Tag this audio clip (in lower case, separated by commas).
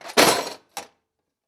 tools